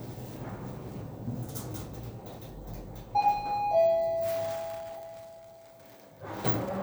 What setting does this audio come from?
elevator